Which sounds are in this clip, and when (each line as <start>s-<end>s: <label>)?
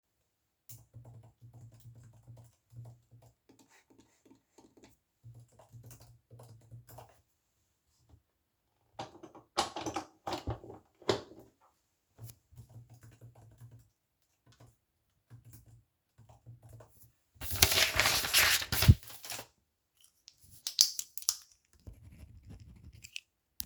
0.7s-3.4s: keyboard typing
5.2s-7.4s: keyboard typing
12.1s-17.2s: keyboard typing